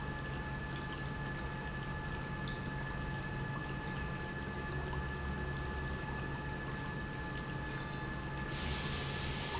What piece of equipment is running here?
pump